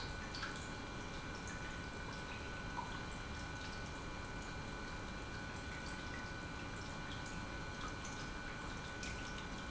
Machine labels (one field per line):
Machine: pump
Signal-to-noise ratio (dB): 6 dB